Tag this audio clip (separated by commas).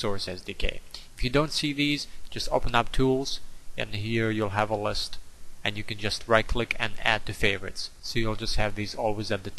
Speech